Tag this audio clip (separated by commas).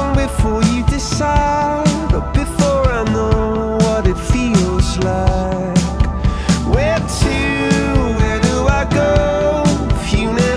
Music